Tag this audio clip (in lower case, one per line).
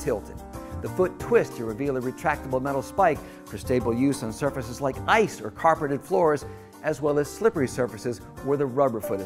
speech